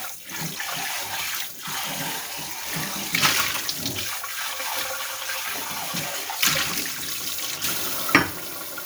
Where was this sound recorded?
in a kitchen